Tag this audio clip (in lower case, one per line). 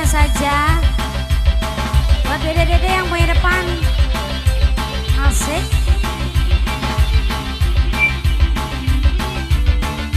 speech
music
jazz